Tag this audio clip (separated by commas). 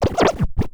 Music, Scratching (performance technique), Musical instrument